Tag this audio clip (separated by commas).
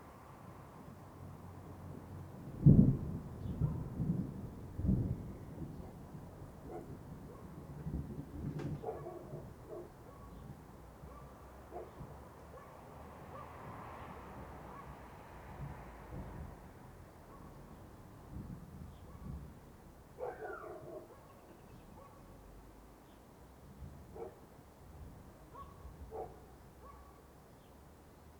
Thunder, Thunderstorm